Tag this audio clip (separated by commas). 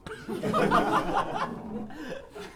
Human voice, Laughter